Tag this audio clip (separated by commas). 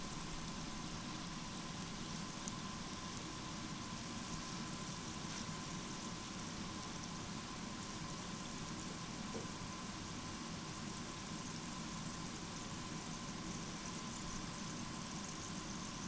Frying (food), Domestic sounds